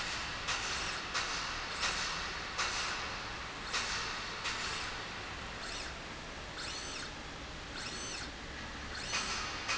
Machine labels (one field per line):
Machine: slide rail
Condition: normal